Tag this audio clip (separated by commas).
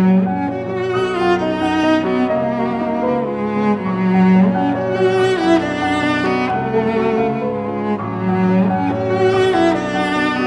Music, fiddle, Musical instrument